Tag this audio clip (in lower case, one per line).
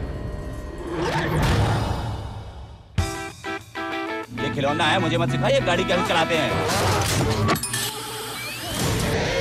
music
vehicle
speech
vroom